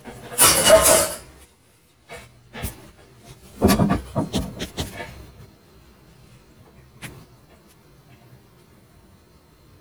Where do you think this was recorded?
in a kitchen